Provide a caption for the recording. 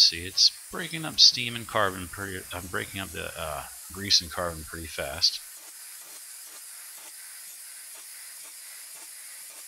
An adult male is speaking, crickets are chirping, and hissing is occurring